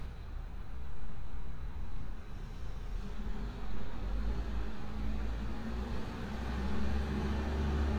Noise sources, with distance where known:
large-sounding engine, near

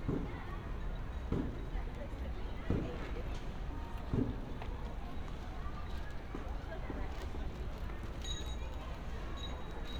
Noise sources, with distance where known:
unidentified human voice, far

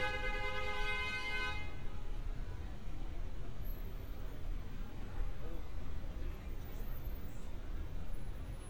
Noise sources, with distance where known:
car horn, near; unidentified human voice, far

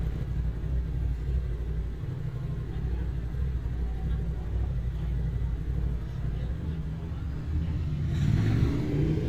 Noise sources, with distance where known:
medium-sounding engine, near; person or small group talking, near

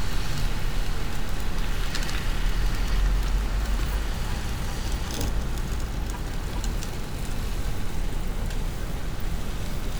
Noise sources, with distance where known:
car horn, far

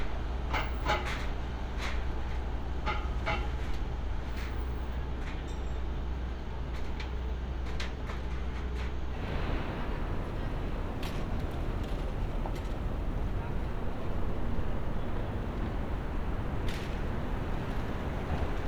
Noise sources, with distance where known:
non-machinery impact

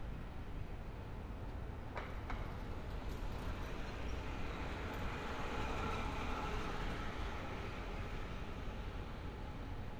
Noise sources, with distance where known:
engine of unclear size

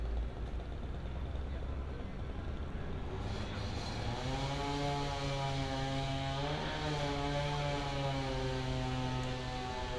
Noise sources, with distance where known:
unidentified powered saw, far

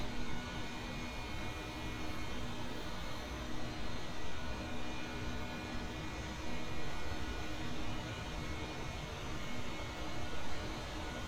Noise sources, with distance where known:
background noise

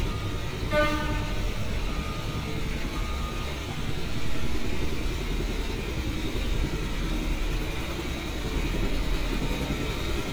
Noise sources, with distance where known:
car horn, far

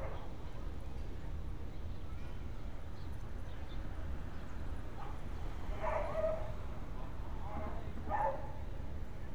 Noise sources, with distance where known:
dog barking or whining, near

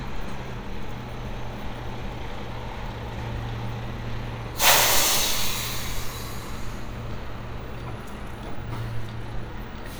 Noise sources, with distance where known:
large-sounding engine

